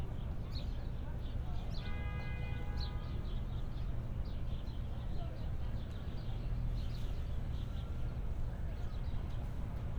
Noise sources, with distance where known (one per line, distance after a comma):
car horn, far
person or small group talking, far